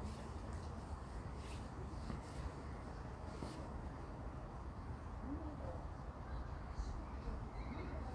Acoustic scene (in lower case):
park